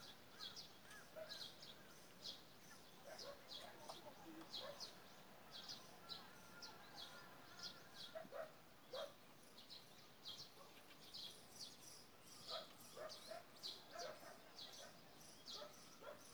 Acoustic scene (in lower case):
park